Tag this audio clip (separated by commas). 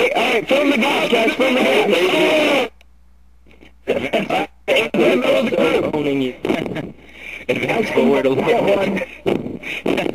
Speech, outside, rural or natural